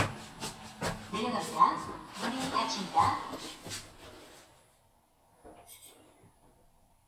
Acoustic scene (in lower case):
elevator